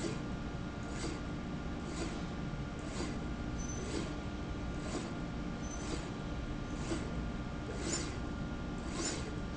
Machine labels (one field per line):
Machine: slide rail